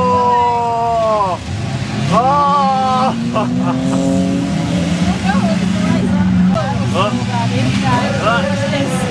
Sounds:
Speech

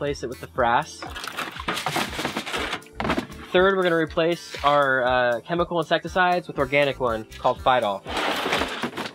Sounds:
Music, Speech

